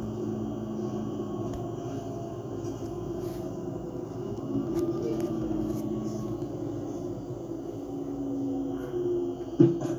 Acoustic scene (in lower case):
bus